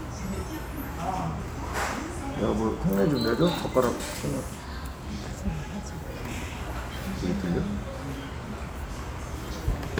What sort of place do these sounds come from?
restaurant